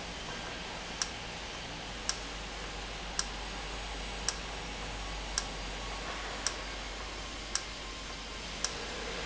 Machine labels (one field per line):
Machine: valve